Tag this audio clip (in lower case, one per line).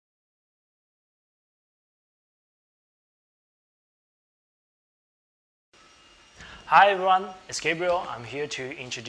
speech
printer